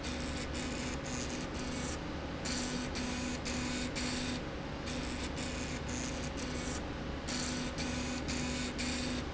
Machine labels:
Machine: slide rail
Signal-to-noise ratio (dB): -6 dB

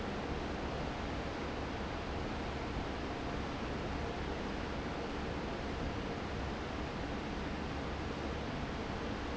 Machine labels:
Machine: fan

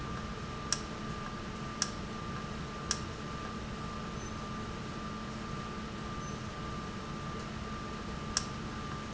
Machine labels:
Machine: valve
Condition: normal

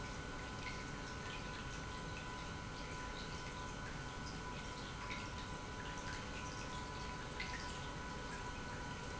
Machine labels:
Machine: pump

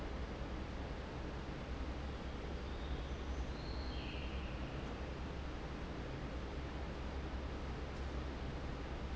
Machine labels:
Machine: fan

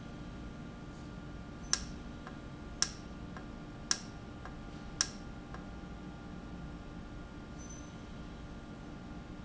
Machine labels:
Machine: valve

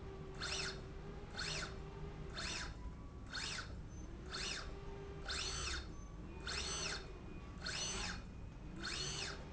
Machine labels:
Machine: slide rail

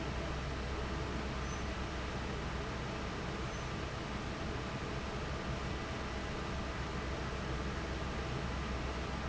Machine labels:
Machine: fan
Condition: normal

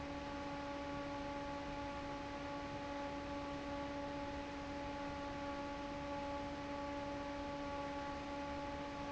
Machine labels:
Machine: fan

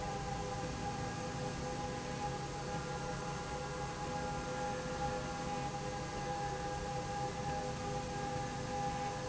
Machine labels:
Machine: slide rail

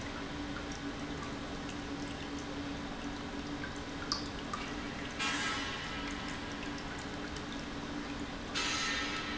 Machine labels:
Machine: pump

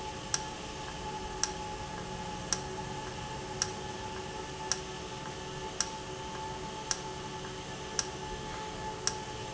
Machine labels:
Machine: valve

